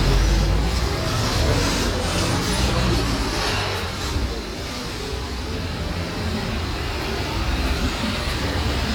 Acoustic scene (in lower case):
street